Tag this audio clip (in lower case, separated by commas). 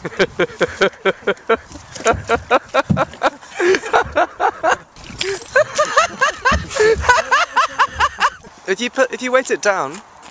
speech